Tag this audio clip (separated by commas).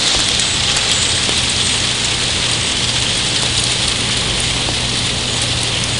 Rain, Water